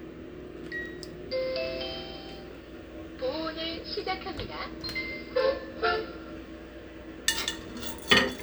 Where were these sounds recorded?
in a kitchen